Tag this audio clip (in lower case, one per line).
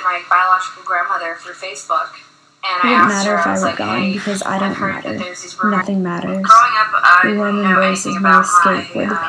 speech